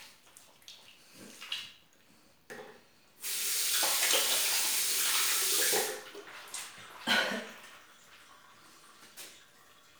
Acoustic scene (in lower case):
restroom